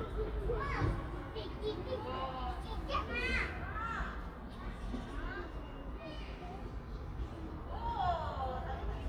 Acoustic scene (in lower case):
residential area